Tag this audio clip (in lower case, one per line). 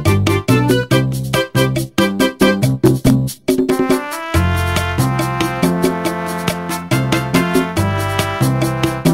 music